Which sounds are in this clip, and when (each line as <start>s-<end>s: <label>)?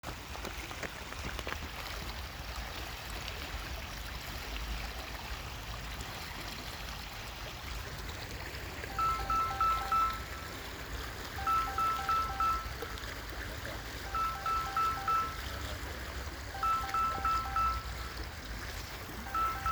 0.0s-19.7s: phone ringing
0.0s-2.7s: footsteps
0.0s-19.7s: running water